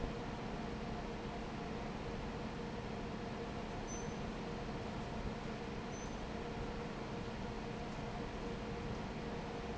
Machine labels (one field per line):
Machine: fan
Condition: normal